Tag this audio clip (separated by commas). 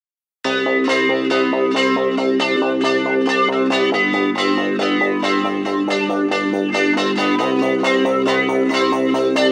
Music